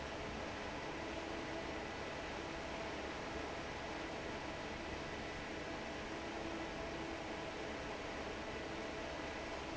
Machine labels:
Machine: fan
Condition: normal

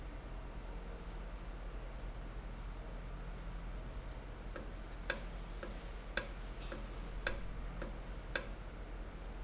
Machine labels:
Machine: valve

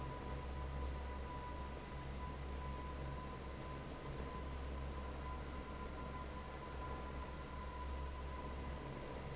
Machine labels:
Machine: fan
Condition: normal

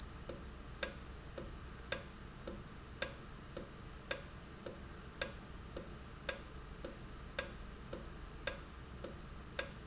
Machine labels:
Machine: valve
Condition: normal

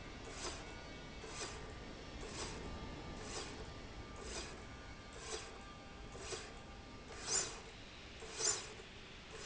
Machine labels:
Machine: slide rail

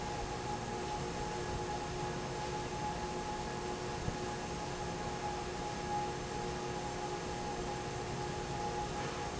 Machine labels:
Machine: fan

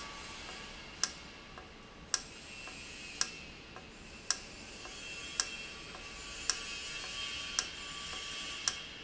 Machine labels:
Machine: valve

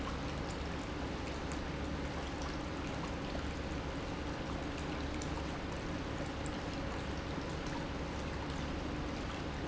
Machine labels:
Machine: pump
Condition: normal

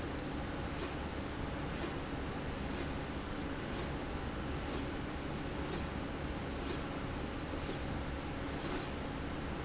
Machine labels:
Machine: slide rail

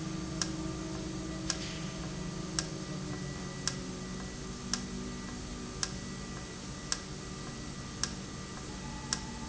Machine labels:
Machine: valve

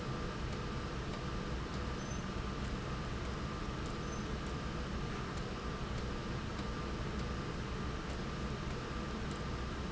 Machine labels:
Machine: slide rail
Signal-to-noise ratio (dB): -6 dB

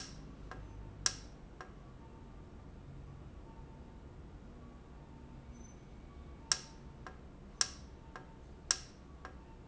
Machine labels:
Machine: valve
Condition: normal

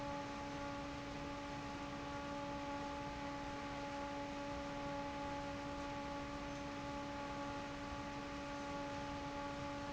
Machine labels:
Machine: fan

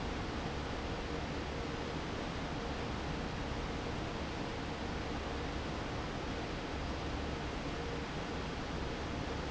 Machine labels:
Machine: fan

